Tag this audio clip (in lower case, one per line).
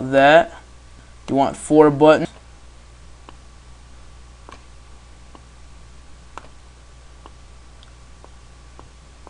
speech